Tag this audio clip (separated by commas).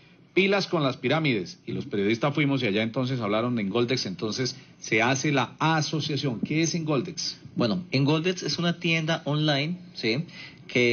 Speech